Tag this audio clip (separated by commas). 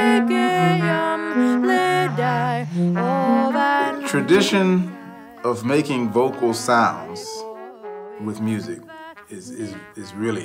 Speech, Trumpet, Music